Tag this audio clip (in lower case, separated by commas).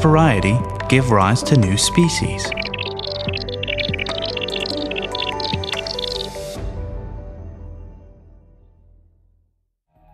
speech, music